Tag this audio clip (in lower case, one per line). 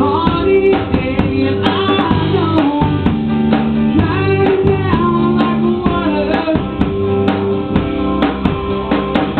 music